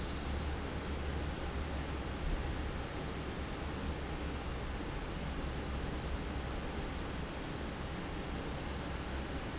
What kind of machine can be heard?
fan